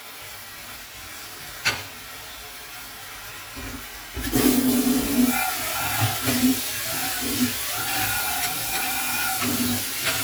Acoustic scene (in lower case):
kitchen